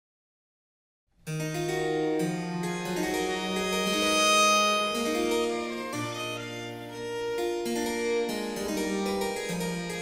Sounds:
cello, piano, music, bowed string instrument, fiddle, orchestra, musical instrument

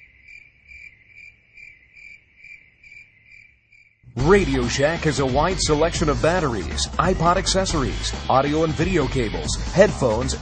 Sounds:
speech, music

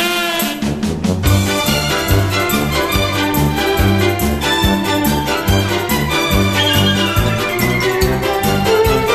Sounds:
music

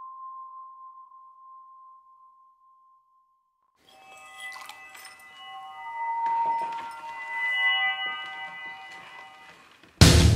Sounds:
music, effects unit

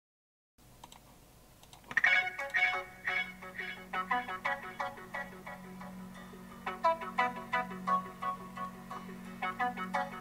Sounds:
typing

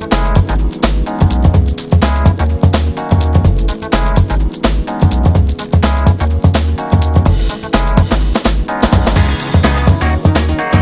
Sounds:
music

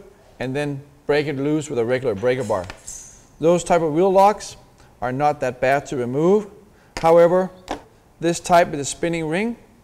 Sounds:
speech

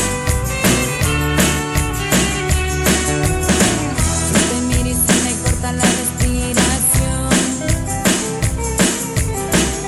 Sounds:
music, rock and roll

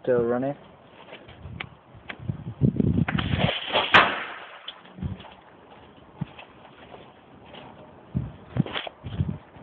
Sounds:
speech

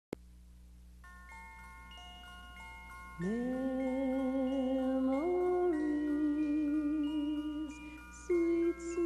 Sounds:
music

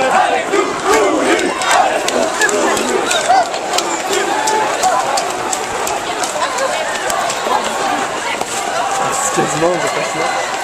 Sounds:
speech

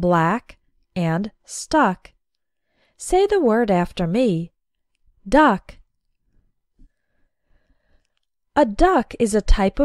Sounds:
speech

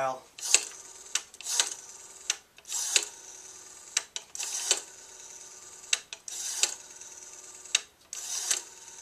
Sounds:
telephone, speech

